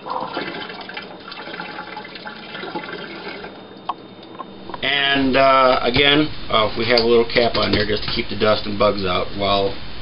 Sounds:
speech
inside a small room

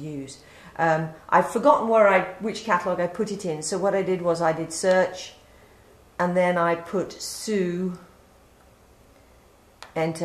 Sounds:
speech

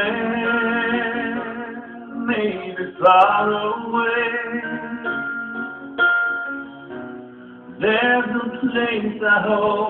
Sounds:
inside a small room
music
singing

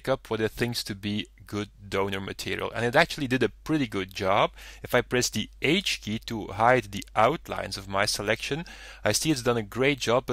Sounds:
speech

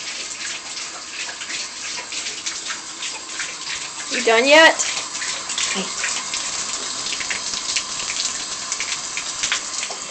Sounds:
faucet
speech
bathtub (filling or washing)

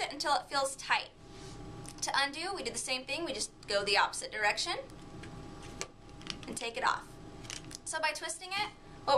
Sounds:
speech

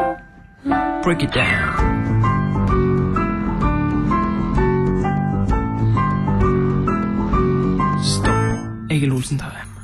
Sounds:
keyboard (musical)
music

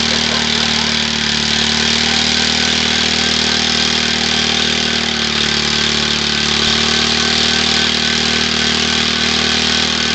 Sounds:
vehicle

